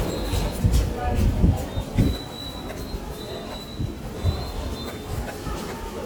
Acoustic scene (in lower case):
subway station